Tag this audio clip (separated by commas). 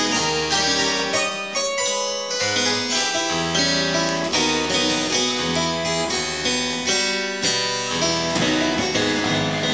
playing harpsichord